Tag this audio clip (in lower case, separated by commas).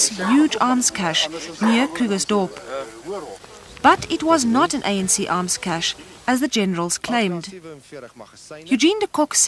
outside, rural or natural, speech